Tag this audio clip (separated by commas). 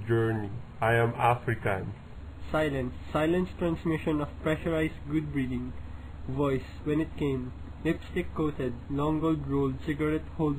Speech